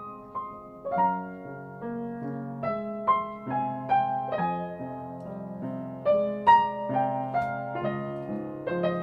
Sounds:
music

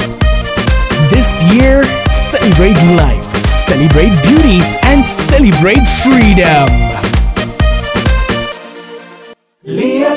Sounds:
afrobeat
music
speech

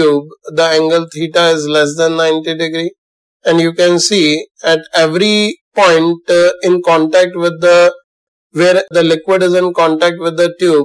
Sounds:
speech

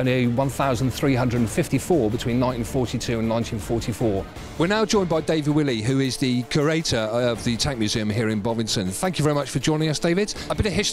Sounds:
speech
music

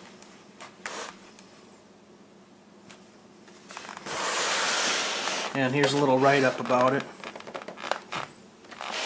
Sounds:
speech

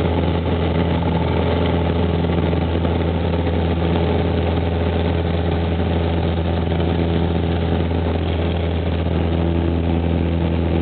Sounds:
aircraft
vehicle

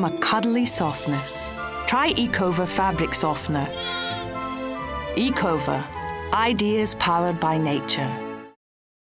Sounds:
music
speech

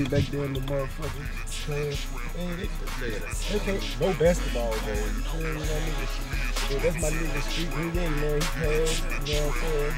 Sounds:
speech
music

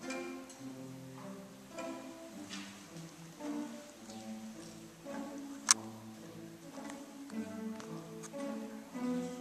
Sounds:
orchestra
music
musical instrument

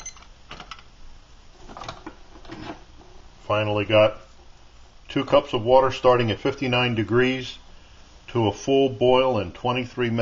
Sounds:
speech

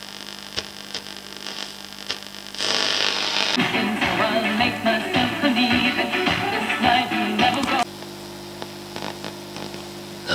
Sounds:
hum

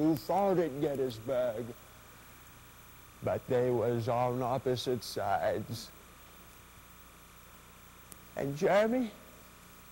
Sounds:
speech

